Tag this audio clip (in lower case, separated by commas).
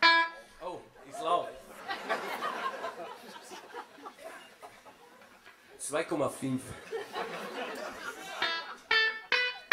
music, guitar